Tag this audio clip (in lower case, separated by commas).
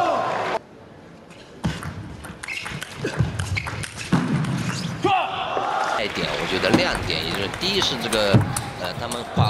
playing table tennis